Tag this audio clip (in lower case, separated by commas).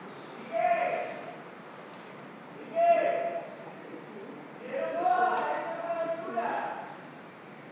shout, human voice, yell